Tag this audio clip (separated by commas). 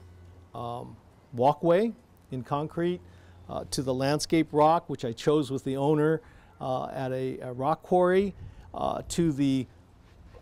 Speech